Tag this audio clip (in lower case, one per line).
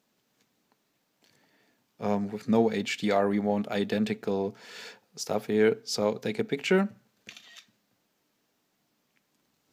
speech
inside a small room